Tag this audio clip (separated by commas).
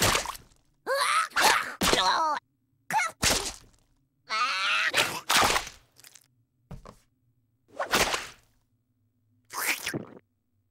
crash